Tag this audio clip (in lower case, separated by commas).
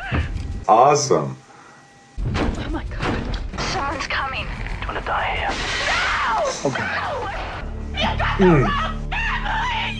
speech, music